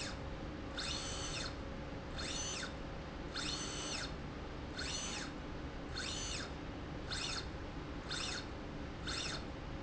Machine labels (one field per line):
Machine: slide rail